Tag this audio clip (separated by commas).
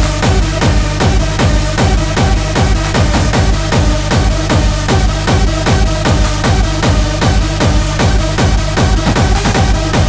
Music, Sound effect